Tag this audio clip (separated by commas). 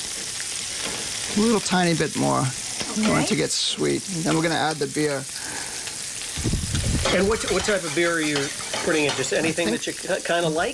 Frying (food), Sizzle